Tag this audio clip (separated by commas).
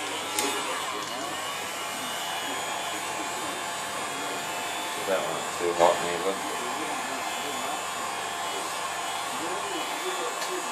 Speech